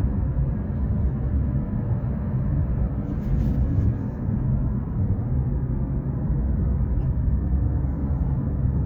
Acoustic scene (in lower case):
car